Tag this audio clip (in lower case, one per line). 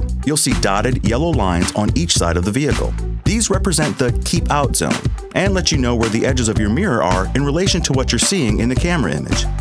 speech
music